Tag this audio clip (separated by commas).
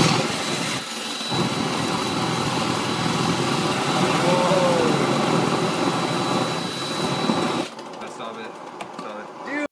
Speech